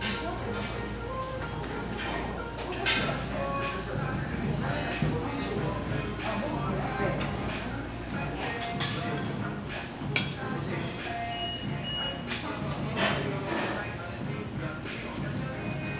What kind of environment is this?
crowded indoor space